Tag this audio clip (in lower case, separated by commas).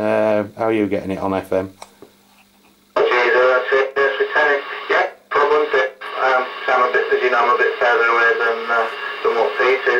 radio, speech